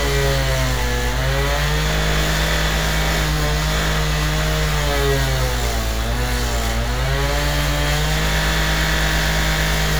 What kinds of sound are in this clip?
large rotating saw